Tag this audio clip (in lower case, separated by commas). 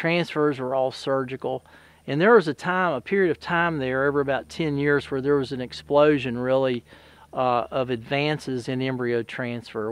speech